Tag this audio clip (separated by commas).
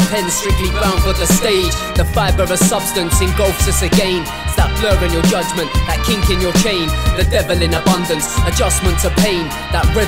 Funk, Music